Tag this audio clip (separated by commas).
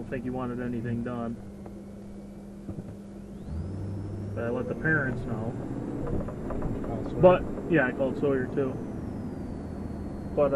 Car, Vehicle, Speech